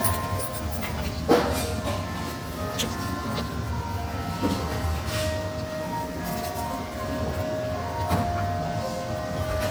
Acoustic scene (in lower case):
cafe